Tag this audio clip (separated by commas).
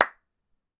Hands, Clapping